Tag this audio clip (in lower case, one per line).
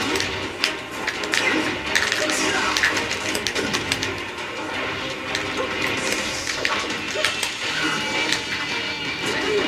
music